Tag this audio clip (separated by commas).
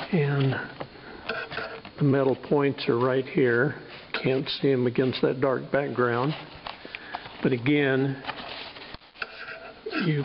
Speech